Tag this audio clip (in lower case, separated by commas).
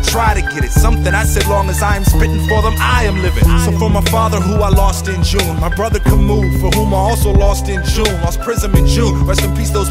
rapping